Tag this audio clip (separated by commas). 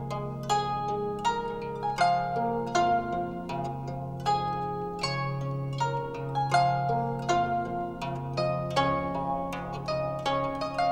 playing zither